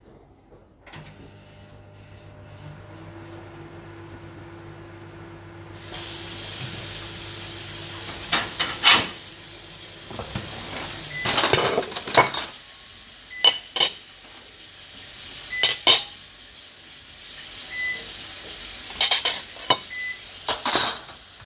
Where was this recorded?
kitchen